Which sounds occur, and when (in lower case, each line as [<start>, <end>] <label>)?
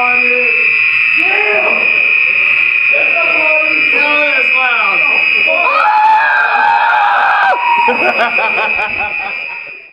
[0.00, 0.69] man speaking
[0.00, 9.82] fire alarm
[1.07, 1.75] man speaking
[2.21, 5.57] man speaking
[5.40, 7.86] shout
[7.79, 9.71] laughter
[9.34, 9.82] man speaking